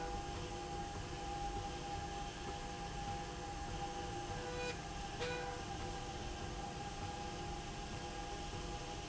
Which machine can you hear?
slide rail